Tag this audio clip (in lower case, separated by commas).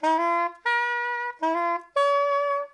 music, musical instrument, wind instrument